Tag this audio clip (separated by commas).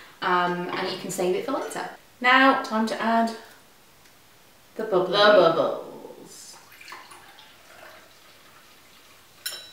Speech, inside a small room